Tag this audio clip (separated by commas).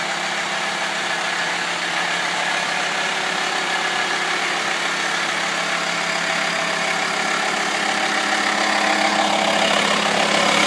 Idling, inside a large room or hall, Car, Vehicle